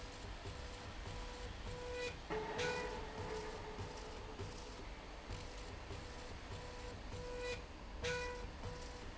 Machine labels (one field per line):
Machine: slide rail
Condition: normal